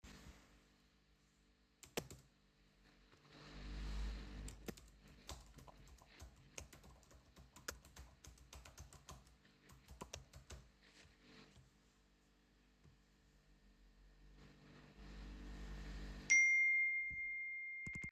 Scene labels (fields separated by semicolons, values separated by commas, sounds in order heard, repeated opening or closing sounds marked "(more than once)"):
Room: bedroom; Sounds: keyboard typing, phone ringing